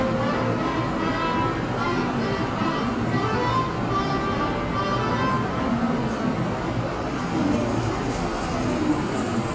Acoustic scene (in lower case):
subway station